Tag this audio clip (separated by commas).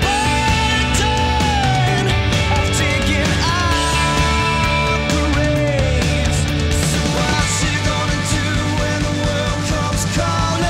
Music